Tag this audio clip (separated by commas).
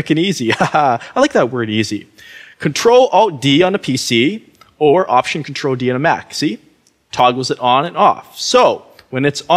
Speech